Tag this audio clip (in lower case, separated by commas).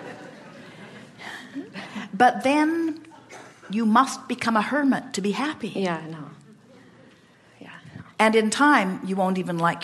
speech